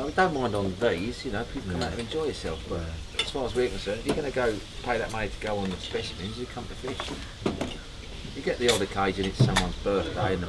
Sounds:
speech

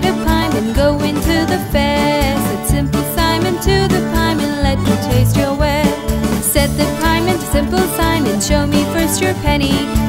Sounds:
music, singing

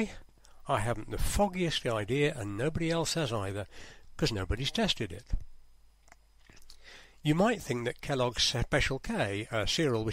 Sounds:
speech

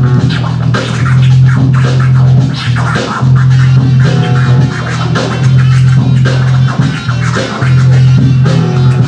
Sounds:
scratching (performance technique), electronic music, music

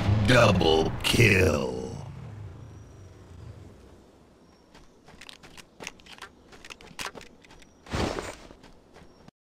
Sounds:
speech

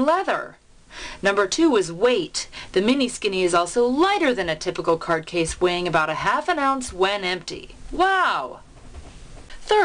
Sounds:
speech

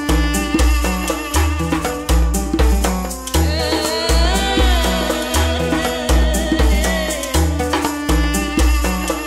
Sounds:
soundtrack music, music

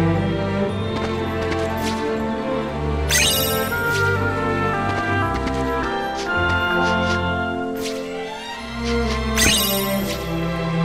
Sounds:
music

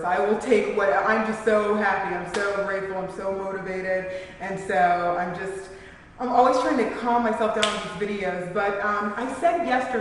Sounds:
speech

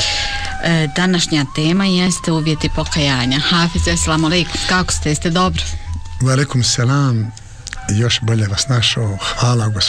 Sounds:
speech, music

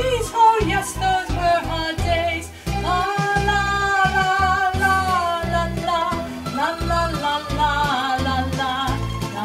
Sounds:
music

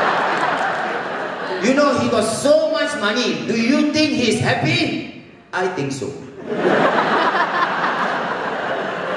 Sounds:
speech, people sniggering, snicker

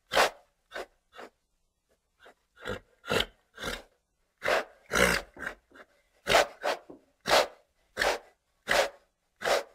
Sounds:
horse neighing

